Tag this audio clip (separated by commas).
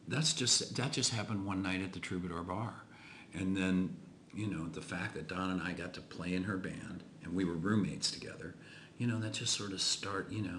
Speech